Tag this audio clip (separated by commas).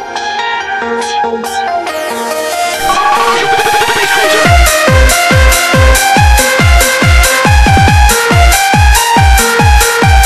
Techno, Electronic music, Music